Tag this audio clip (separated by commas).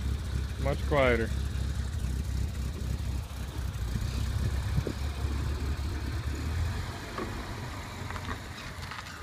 Speech